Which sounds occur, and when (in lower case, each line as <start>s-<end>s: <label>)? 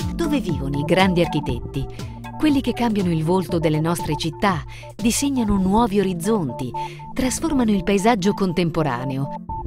0.0s-1.8s: female speech
0.0s-9.6s: music
1.9s-2.2s: breathing
2.4s-4.6s: female speech
4.6s-4.9s: breathing
5.0s-6.7s: female speech
6.7s-7.1s: breathing
7.1s-9.2s: female speech